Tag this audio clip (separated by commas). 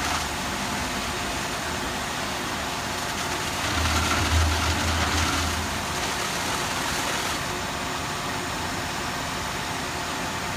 Vehicle